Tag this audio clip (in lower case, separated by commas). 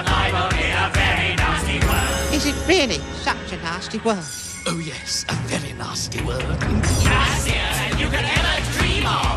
music, speech